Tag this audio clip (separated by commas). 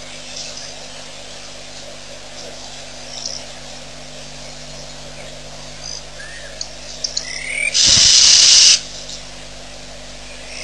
Bird, outside, rural or natural